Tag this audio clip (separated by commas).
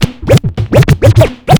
Musical instrument, Music, Scratching (performance technique)